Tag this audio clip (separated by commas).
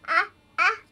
Human voice, Speech